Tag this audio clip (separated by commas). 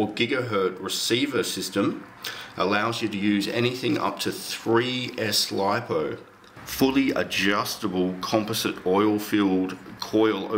Speech